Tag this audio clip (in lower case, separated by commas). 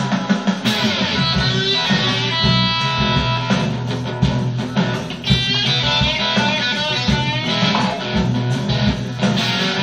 plucked string instrument, guitar, musical instrument, blues, electric guitar, music, strum